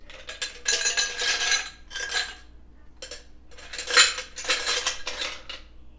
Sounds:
Glass

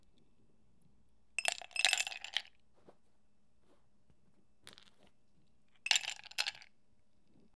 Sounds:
Glass

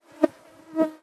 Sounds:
Buzz, Insect, Wild animals, Animal

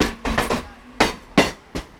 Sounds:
Train, Vehicle, Rail transport

